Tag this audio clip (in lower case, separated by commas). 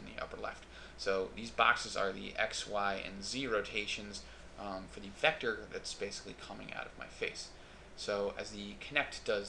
speech